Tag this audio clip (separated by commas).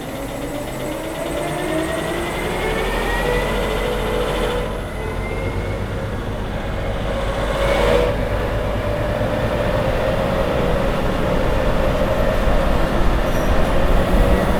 vroom, Engine